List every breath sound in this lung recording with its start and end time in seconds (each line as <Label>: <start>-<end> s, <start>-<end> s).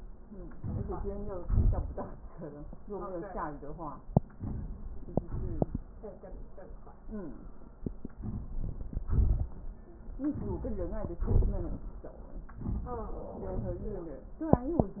Inhalation: 0.55-0.95 s, 4.34-4.75 s, 8.19-8.55 s, 10.29-10.79 s
Exhalation: 1.42-1.91 s, 5.19-5.89 s, 9.05-9.53 s, 11.21-11.83 s